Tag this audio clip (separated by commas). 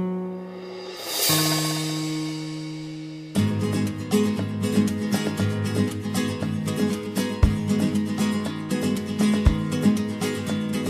Music, Acoustic guitar, Guitar, Plucked string instrument, Musical instrument